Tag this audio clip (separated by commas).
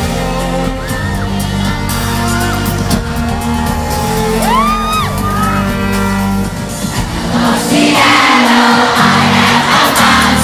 Music